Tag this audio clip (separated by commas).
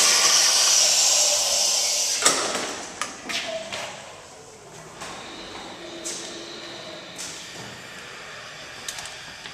Water